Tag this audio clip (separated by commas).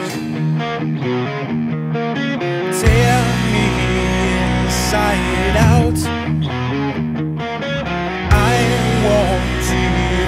Independent music, Music, Rhythm and blues